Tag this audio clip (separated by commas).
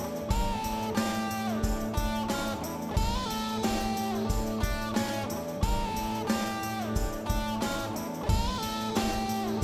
Music